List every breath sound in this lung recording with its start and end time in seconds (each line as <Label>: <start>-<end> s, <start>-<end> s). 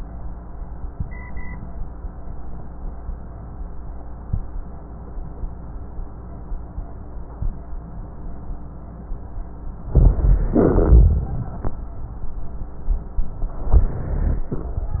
Inhalation: 9.89-10.57 s, 13.66-14.53 s
Exhalation: 10.57-11.73 s
Rhonchi: 9.91-10.53 s, 10.57-11.73 s, 13.66-14.53 s